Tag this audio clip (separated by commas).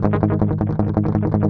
Strum, Musical instrument, Plucked string instrument, Guitar, Music